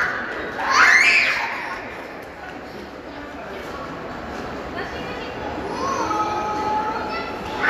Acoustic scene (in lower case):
crowded indoor space